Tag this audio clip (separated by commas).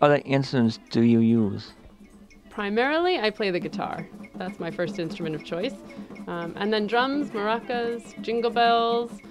Speech, Music